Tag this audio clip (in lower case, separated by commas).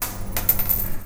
coin (dropping), domestic sounds